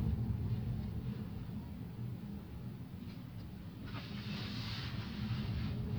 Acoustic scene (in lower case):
car